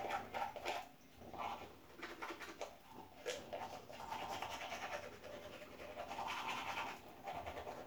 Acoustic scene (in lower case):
restroom